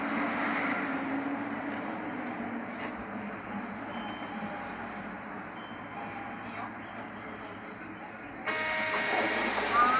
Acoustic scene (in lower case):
bus